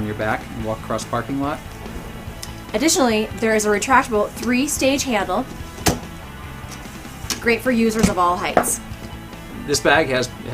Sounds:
music, speech

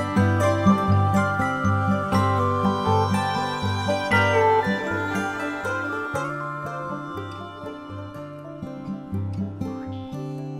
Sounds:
music

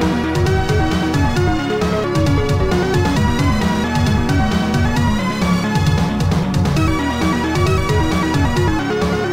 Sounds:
music, background music, exciting music

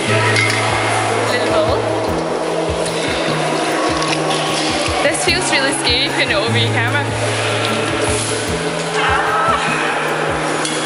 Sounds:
speech, music

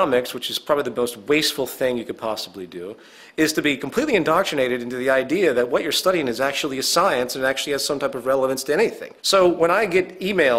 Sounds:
speech

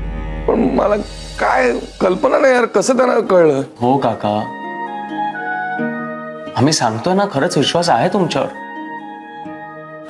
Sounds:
inside a large room or hall, speech, music

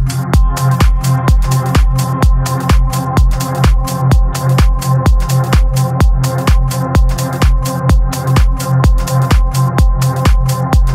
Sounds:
music

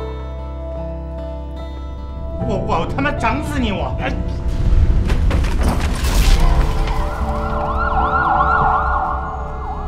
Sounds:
siren, ambulance (siren), emergency vehicle

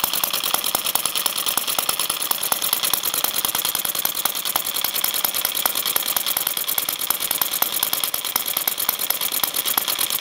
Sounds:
engine

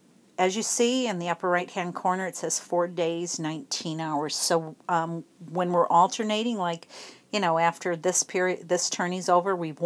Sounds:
speech

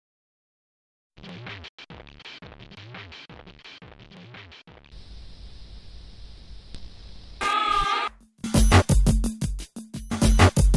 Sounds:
music, cacophony

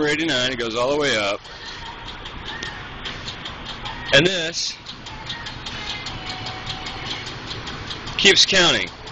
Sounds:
music, speech

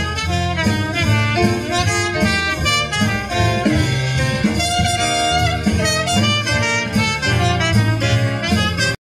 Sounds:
musical instrument, trumpet, music

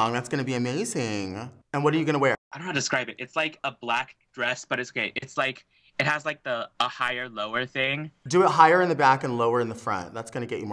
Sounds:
speech

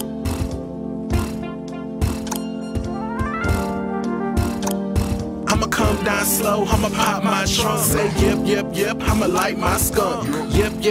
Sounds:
jazz, music, rhythm and blues

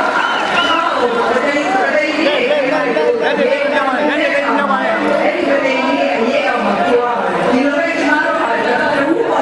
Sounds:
speech, woman speaking

